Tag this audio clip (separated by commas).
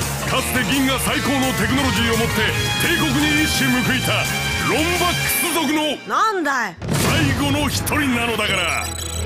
Speech, Music